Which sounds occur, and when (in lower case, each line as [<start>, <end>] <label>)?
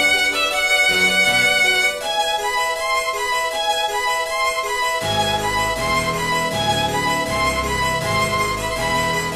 [0.00, 9.35] music